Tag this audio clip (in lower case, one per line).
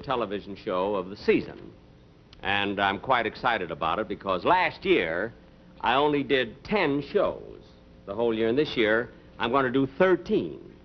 speech
television